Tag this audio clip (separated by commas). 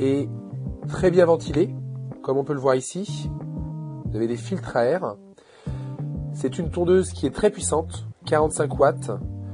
Speech, Music